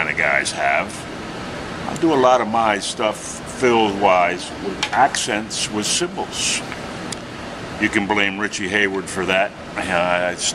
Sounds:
Rustle, Speech

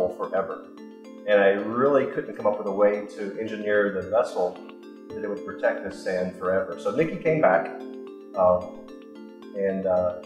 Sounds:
Speech, Music

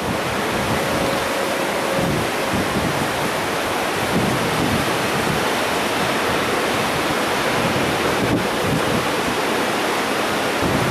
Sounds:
Rail transport, Train, Vehicle

